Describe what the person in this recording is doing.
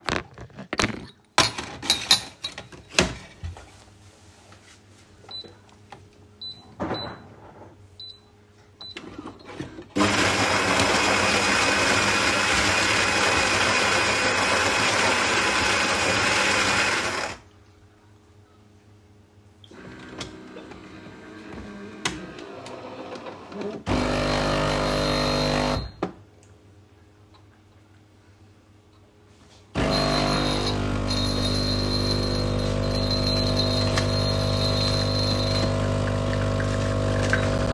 I got two cups out of a drawer and poured me and my mother an espresso